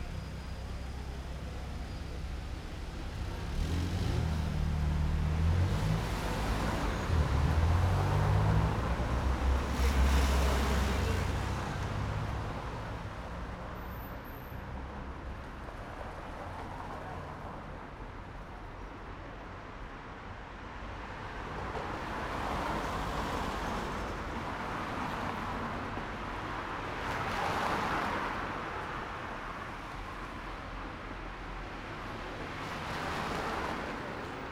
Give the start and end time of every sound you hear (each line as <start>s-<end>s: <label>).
0.0s-3.1s: car engine idling
0.0s-34.5s: car
3.1s-12.4s: car engine accelerating
5.4s-34.5s: car wheels rolling